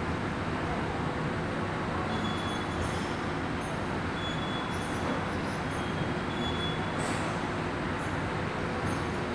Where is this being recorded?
in a subway station